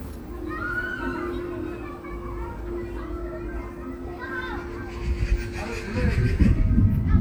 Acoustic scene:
park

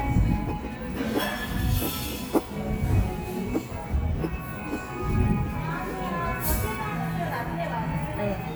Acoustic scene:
cafe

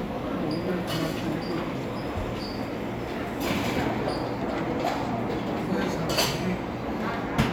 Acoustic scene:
cafe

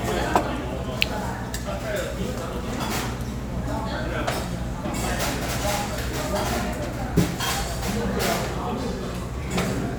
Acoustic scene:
restaurant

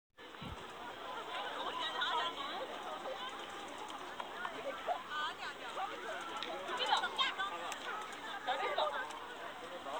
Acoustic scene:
park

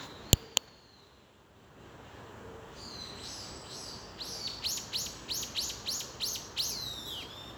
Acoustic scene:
park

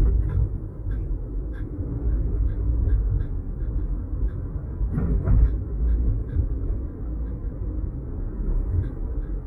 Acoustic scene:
car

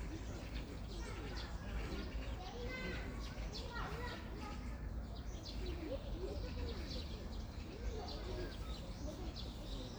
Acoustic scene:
park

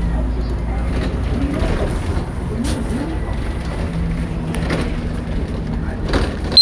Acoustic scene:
bus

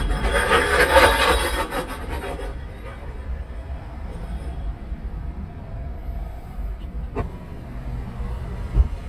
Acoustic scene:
car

